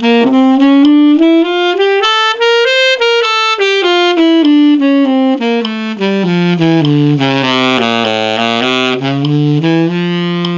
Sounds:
playing saxophone

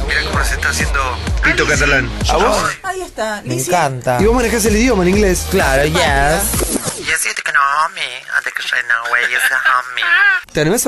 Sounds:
Radio, Speech, Music

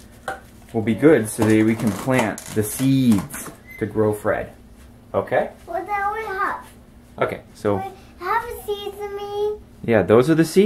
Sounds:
kid speaking

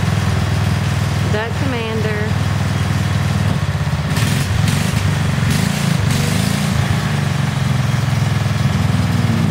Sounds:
Speech

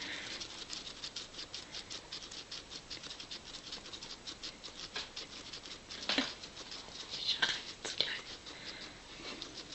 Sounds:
Speech

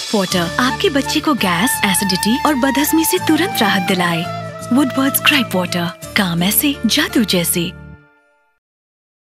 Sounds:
Speech, Music

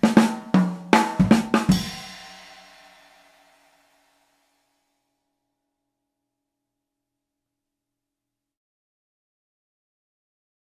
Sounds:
playing cymbal

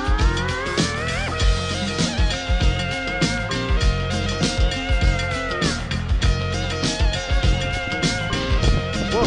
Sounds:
Music

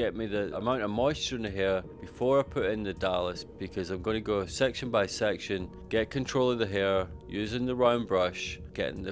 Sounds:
Speech

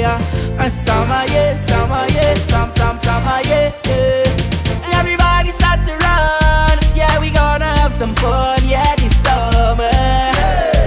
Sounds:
Music, Theme music

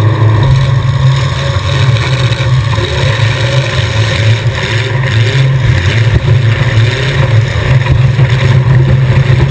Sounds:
Car, Vehicle, Motor vehicle (road)

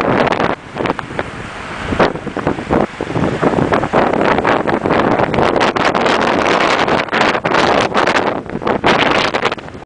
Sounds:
Stream

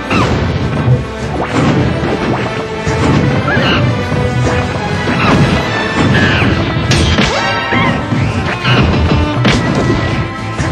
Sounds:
Music

